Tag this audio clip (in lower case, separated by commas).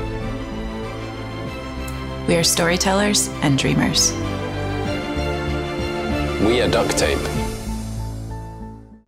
speech, music